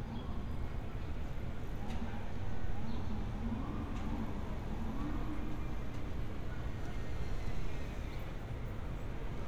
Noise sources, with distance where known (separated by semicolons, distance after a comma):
unidentified powered saw, far; siren, far